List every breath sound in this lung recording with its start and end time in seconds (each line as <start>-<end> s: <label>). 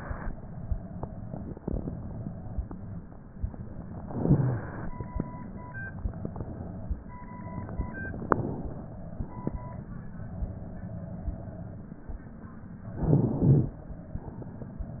3.96-4.91 s: inhalation
8.23-9.46 s: exhalation
12.94-13.80 s: inhalation